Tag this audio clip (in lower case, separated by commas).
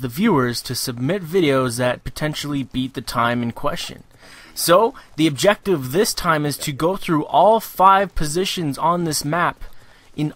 speech